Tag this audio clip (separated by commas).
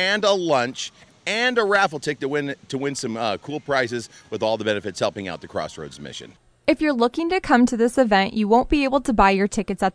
Speech